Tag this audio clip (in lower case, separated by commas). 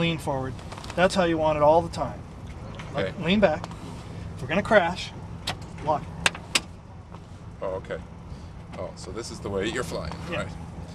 speech